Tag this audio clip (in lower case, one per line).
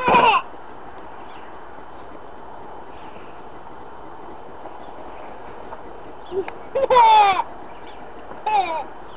animal
bee or wasp
insect